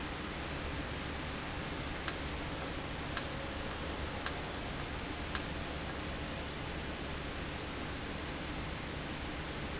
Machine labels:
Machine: valve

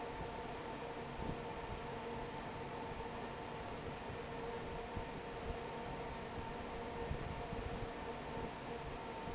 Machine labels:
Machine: fan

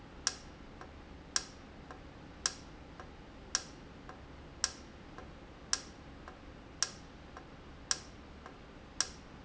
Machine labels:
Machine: valve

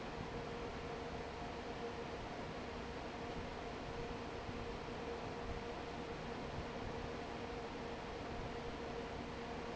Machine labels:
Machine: fan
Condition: normal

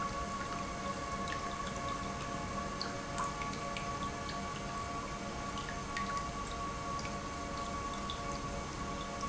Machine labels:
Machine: pump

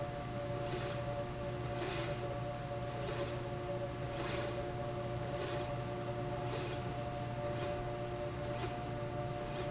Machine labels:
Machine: slide rail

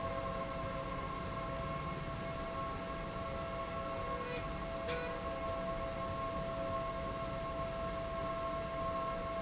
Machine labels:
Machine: slide rail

